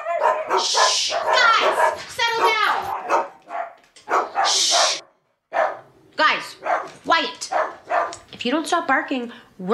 Dogs are barking and an adult female speaks